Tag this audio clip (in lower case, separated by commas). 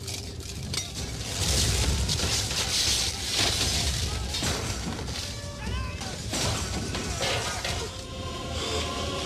speech, music